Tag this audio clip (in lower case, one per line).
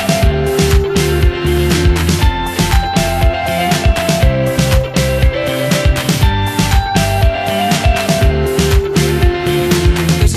music